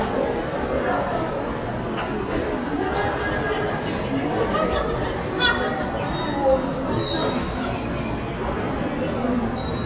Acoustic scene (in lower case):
subway station